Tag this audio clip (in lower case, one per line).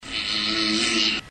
fart